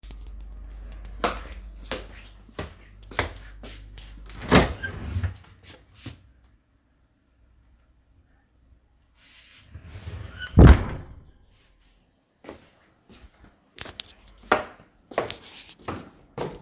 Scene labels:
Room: kitchen; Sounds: footsteps

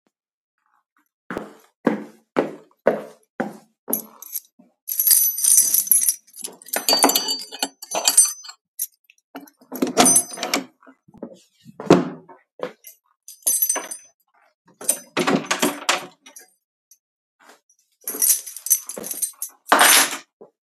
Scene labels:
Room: bedroom; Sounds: footsteps, keys, door (more than once)

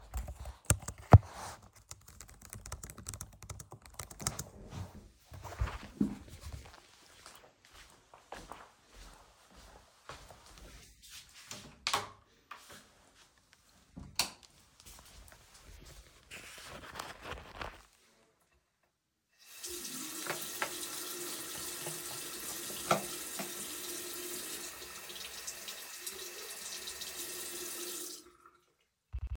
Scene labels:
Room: bathroom, lavatory; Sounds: keyboard typing, footsteps, door, light switch, running water

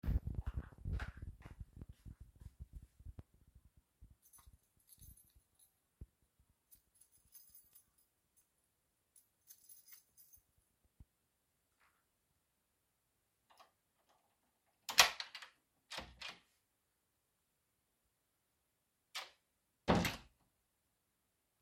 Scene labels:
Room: hallway; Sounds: footsteps, keys, door (more than once)

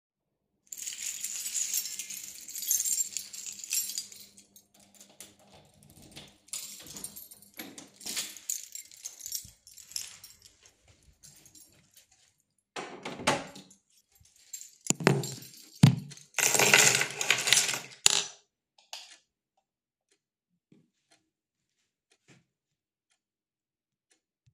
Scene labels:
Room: hallway; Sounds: keys, door (more than once), light switch

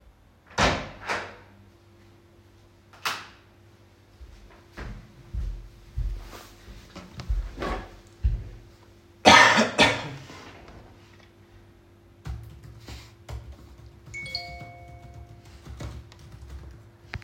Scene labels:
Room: hallway, bedroom; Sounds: door, light switch, footsteps, cutlery and dishes, keyboard typing, phone ringing

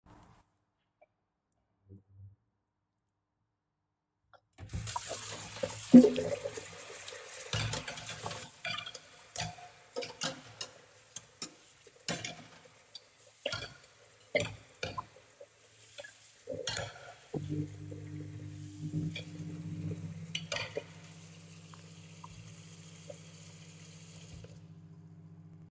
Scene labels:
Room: kitchen; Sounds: running water, cutlery and dishes, microwave

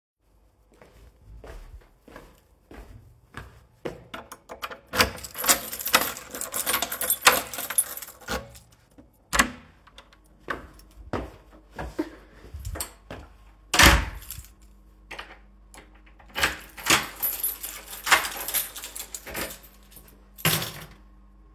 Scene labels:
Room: hallway; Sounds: footsteps, door (more than once), keys

